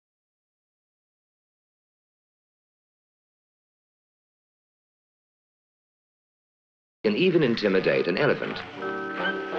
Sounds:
Speech, Music

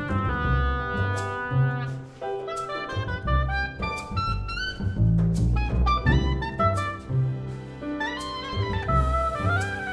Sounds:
playing oboe

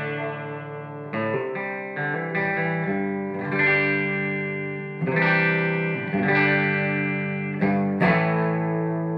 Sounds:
Guitar, Plucked string instrument, inside a small room, Musical instrument, Music

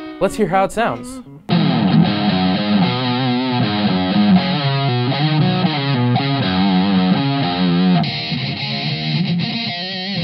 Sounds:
Music, Speech

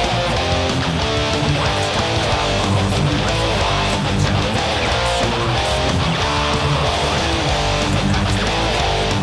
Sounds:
Music, Musical instrument, Guitar

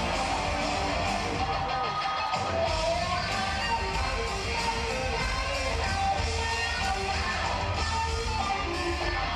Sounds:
Musical instrument, Drum kit, Music, Drum, Speech

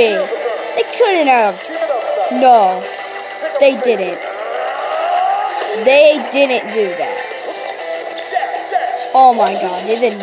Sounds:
Speech, Music

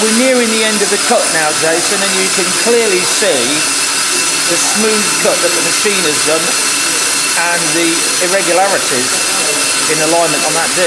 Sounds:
inside a large room or hall, Speech

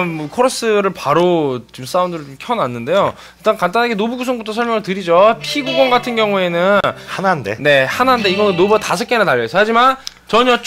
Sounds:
Speech, Music

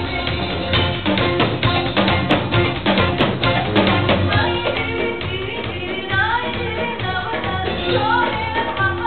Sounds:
Percussion, Music

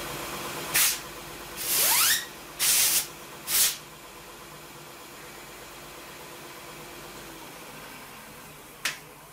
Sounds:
Tools

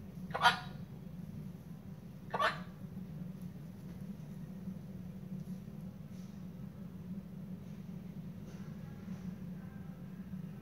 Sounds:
bird squawking

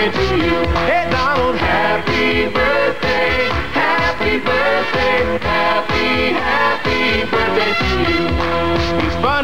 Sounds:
Music

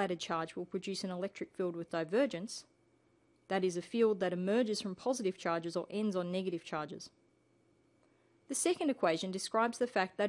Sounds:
Speech

